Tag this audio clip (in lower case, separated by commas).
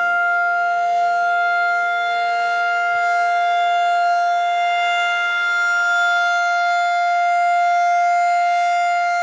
civil defense siren